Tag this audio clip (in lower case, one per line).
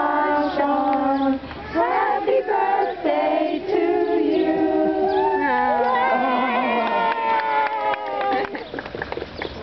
female singing